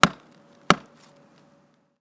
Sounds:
Tools

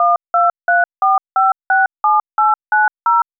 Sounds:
Telephone, Alarm

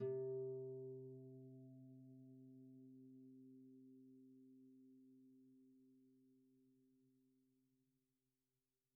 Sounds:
Music, Harp, Musical instrument

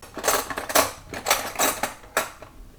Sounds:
Cutlery, home sounds

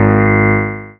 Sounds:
Music, Musical instrument, Keyboard (musical), Piano

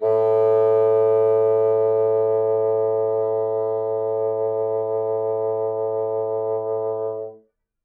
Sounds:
Musical instrument, woodwind instrument, Music

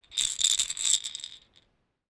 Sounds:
Rattle

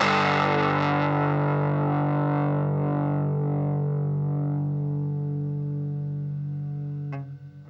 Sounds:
Music, Guitar, Musical instrument, Plucked string instrument

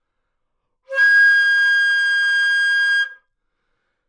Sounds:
Music, Wind instrument, Musical instrument

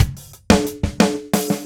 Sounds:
Percussion, Drum, Drum kit, Music, Musical instrument

